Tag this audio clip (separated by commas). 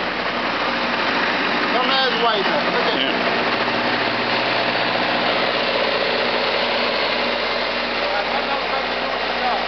Speech, Vehicle